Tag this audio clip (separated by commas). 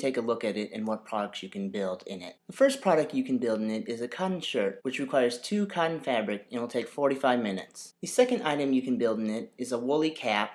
Speech